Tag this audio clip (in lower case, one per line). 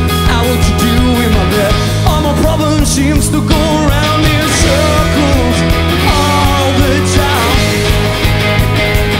speech
music